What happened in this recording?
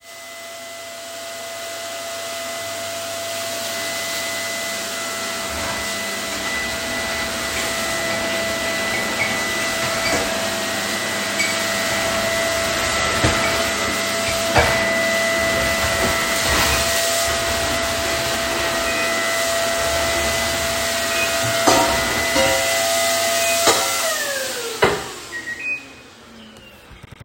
I turned the vacuum, running water, arranged my cutlery and microwave on at the same time